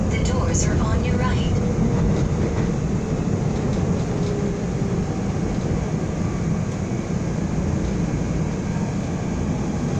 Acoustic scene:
subway train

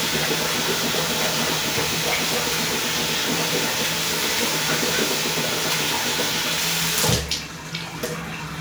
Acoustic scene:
restroom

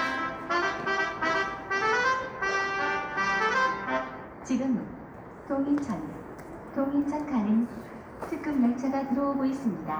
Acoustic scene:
subway station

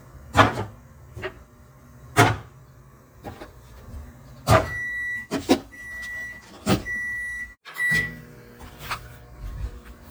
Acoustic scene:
kitchen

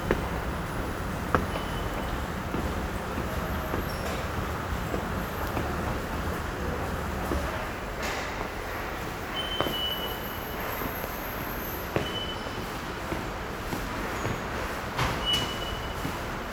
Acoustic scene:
subway station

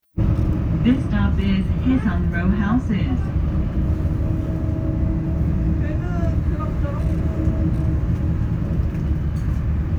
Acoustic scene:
bus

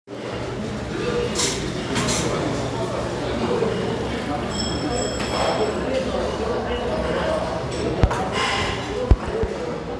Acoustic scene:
restaurant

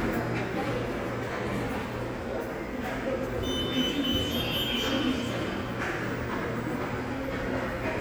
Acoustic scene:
subway station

